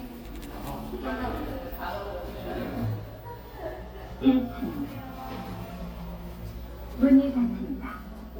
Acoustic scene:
elevator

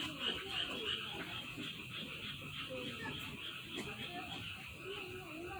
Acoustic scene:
park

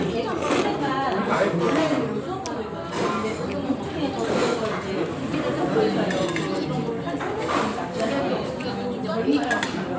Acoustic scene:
restaurant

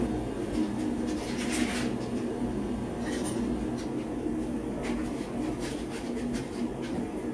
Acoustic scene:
cafe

